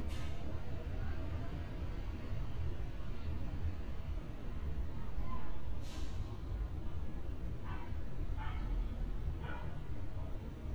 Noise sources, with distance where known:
dog barking or whining

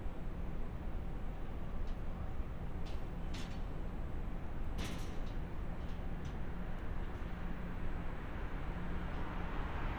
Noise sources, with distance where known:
engine of unclear size, near

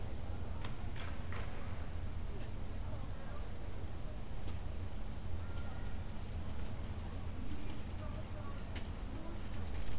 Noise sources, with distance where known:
person or small group talking

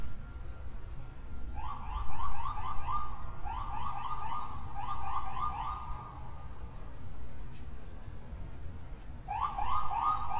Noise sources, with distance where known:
siren, near

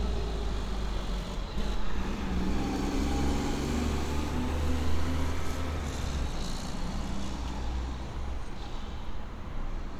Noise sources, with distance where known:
large-sounding engine, near

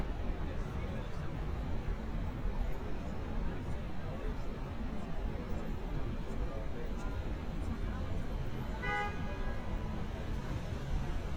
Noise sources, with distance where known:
car horn, near
person or small group talking, far

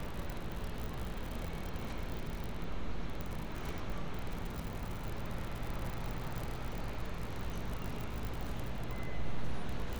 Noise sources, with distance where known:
engine of unclear size, near

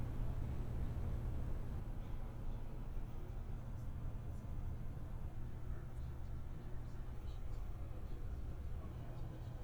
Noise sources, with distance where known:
background noise

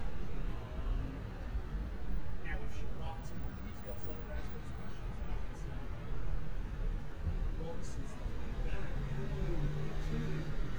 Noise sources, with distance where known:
unidentified human voice

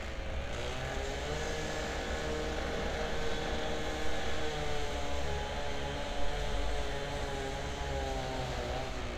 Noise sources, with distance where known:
small-sounding engine, near

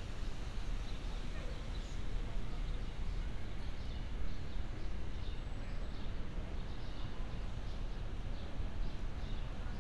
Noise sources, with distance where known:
background noise

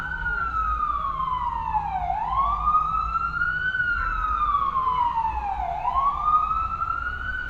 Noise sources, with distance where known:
siren, near

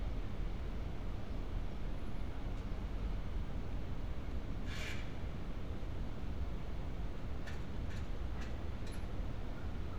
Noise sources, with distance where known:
background noise

